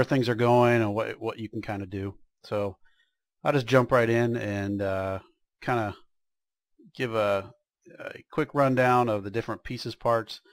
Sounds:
speech

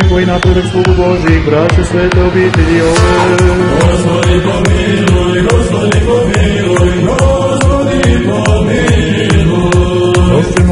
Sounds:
music, techno

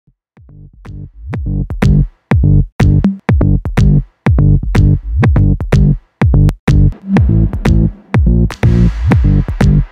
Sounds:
drum machine, music

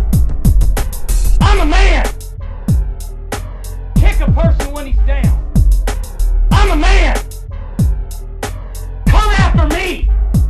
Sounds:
hip hop music, music

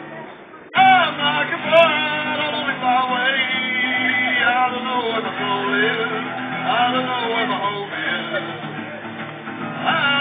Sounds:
strum, music, electric guitar, guitar, acoustic guitar, plucked string instrument, musical instrument

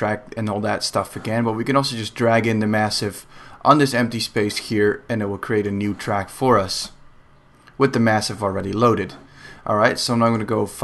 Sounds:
speech

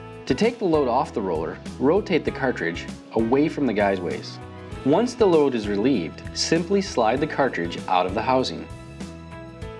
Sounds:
speech

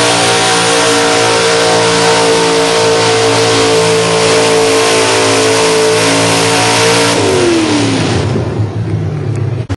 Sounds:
vehicle

